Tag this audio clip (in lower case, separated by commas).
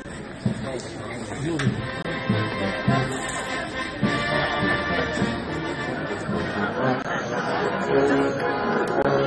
speech, music